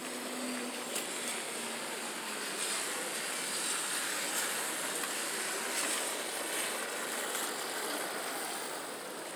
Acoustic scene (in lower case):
residential area